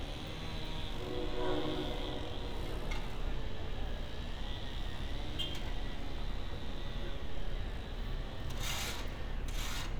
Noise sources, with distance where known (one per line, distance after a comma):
car horn